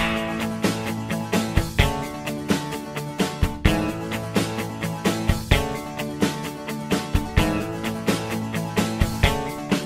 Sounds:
Music

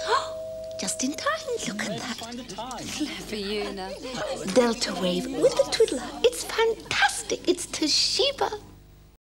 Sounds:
Speech

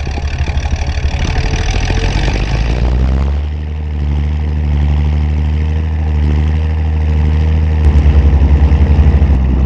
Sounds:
Rustle

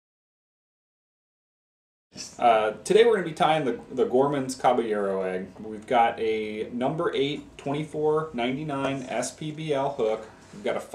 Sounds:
Speech

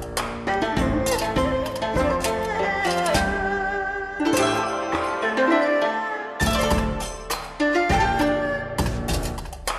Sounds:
Music, Blues, Middle Eastern music, Folk music, Soundtrack music

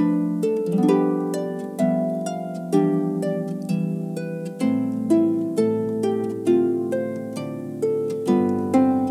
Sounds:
Musical instrument, Music

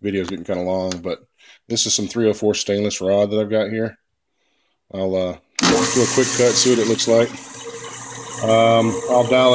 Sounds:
Mechanisms, pawl

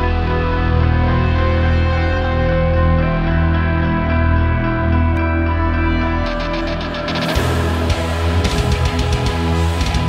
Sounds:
Plucked string instrument, Music, Musical instrument, Guitar

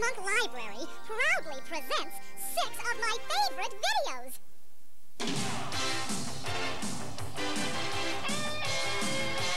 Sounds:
Speech, Music

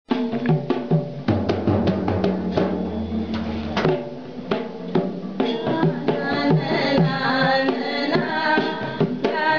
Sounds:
inside a large room or hall, Drum roll, Music

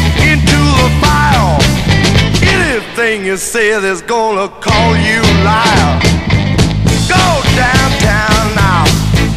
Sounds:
Music

